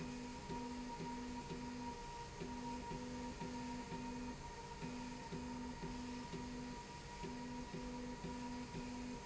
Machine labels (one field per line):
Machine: slide rail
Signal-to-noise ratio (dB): 6 dB